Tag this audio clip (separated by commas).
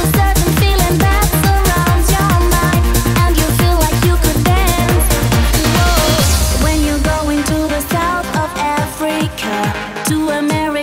Music